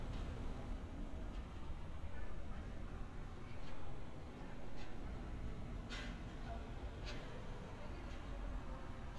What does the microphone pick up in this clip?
person or small group talking